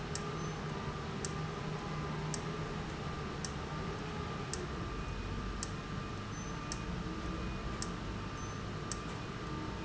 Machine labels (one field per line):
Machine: valve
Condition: abnormal